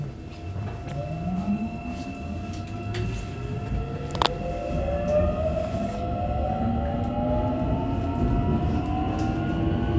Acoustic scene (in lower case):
subway train